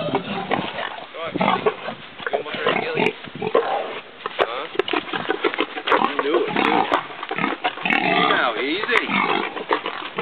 Oinking and murmuring